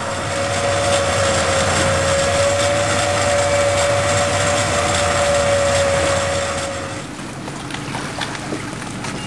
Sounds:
speedboat, Water vehicle, Vehicle

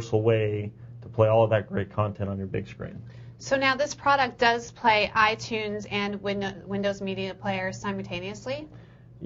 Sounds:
Speech

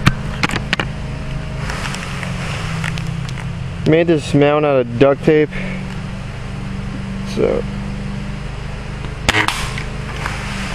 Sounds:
Speech

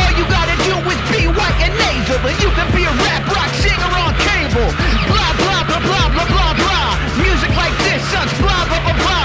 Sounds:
rapping

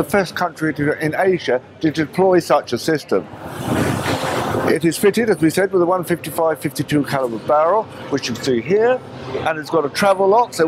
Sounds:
Vehicle, inside a large room or hall, Speech

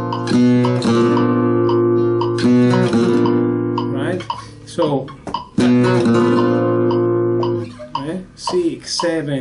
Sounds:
Plucked string instrument, Musical instrument, Music, Flamenco, Strum, Guitar

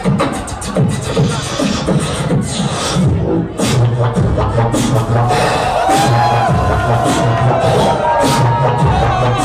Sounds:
Music, Beatboxing, Vocal music

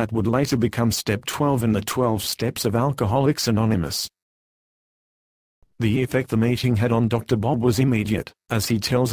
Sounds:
Speech

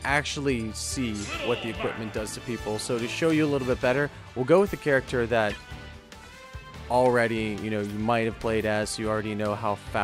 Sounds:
Speech, Music

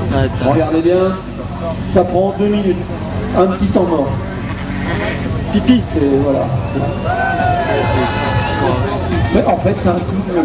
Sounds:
Speech, Music

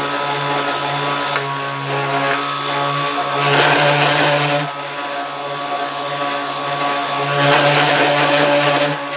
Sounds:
Blender

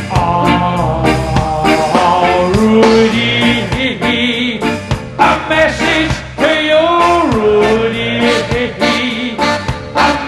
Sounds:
Music, Ska

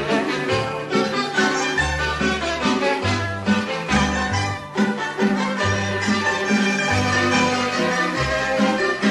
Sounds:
Music

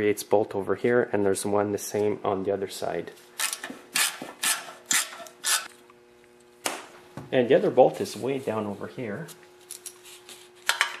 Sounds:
Speech, inside a large room or hall

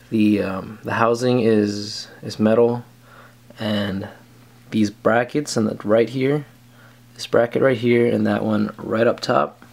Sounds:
Speech

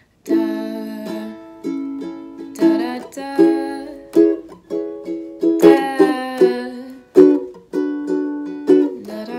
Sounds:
playing ukulele

